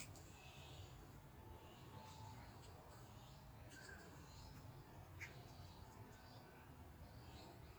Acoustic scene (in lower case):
park